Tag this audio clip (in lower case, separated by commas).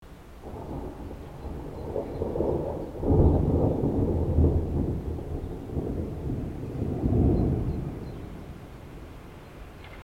thunderstorm, thunder